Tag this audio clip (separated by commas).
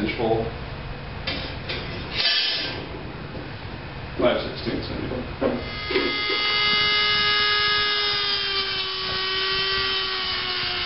Speech, Drill